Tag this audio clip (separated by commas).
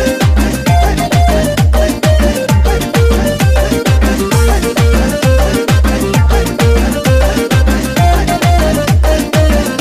Music, Exciting music, Dance music, Soundtrack music, Disco